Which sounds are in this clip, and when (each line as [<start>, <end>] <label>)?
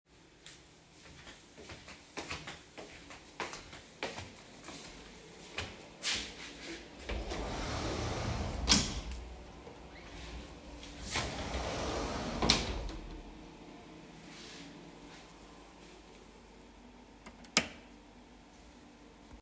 [0.20, 6.84] footsteps
[7.01, 9.03] wardrobe or drawer
[10.98, 12.88] door
[17.39, 17.74] light switch